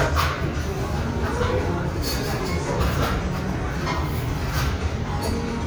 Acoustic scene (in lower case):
restaurant